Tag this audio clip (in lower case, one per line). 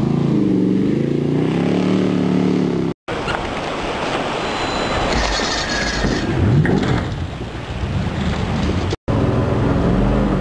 motorboat
vehicle
water vehicle